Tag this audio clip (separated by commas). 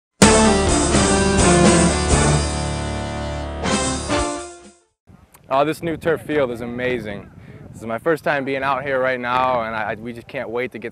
Music, Speech